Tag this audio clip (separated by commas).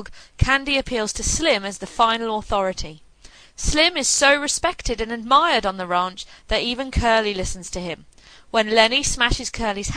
Speech